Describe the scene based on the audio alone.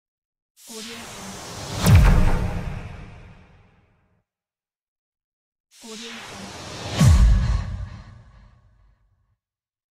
Electronic sounding low vibrating noise